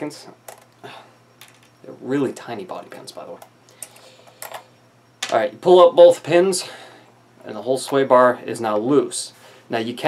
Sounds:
inside a small room, speech

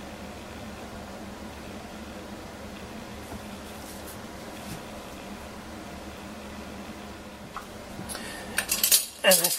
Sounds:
silverware, eating with cutlery

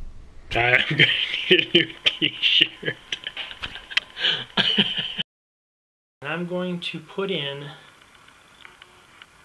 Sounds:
speech

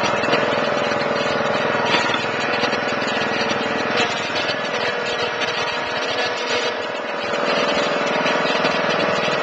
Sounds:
lawn mowing, vehicle, lawn mower

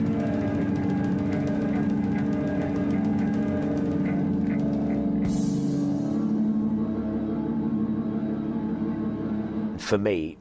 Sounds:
speech, musical instrument, music, inside a small room

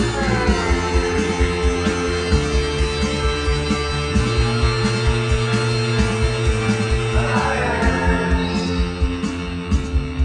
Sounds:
music, theme music

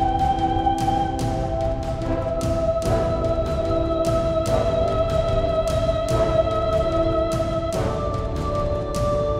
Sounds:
music

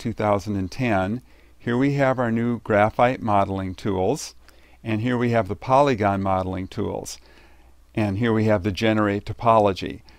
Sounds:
speech

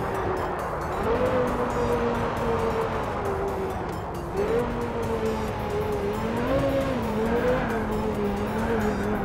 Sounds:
vroom, music, car, vehicle

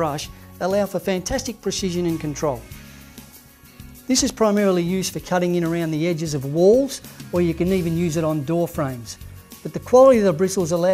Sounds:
speech, music

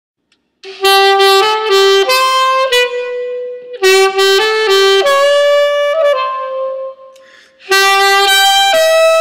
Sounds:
music, saxophone

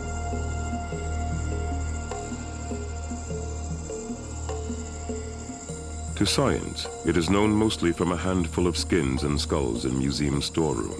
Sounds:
music, speech, afrobeat

